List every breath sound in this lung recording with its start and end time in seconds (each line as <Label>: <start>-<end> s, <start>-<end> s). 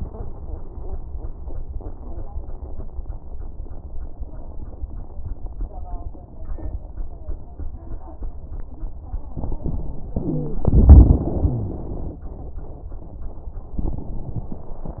Wheeze: 10.15-10.64 s, 11.45-11.86 s